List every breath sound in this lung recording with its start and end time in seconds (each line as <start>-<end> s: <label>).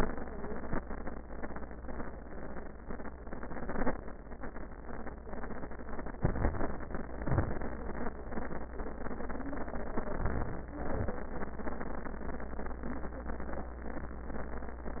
6.17-6.94 s: inhalation
7.04-7.59 s: exhalation
9.97-10.74 s: inhalation
10.78-11.36 s: exhalation